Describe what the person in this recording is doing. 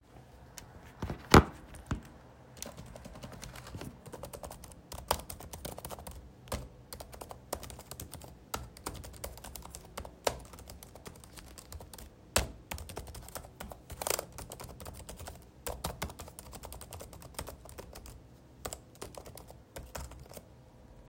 I typed on my laptop while moving around the bedroom. The keyboard sounds are clear and steady throughout the scene.